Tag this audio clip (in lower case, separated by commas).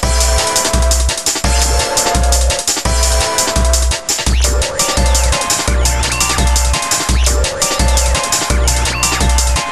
video game music, music